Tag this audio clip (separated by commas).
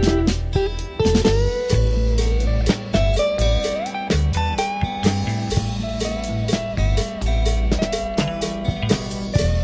Music, Soul music, Radio